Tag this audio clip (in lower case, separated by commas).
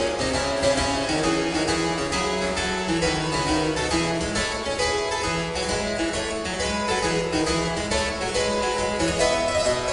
music, harpsichord, playing harpsichord